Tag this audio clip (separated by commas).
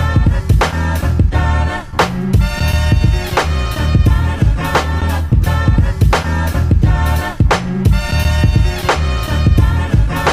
inside a small room, Music